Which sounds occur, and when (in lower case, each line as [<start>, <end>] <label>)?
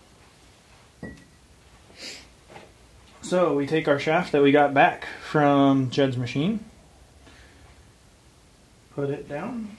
[0.00, 9.75] mechanisms
[1.00, 1.39] generic impact sounds
[1.80, 2.29] sniff
[2.40, 2.73] generic impact sounds
[3.16, 6.65] male speech
[7.20, 7.76] breathing
[8.95, 9.74] male speech